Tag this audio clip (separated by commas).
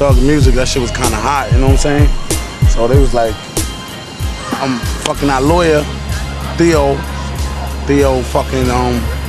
Speech, Music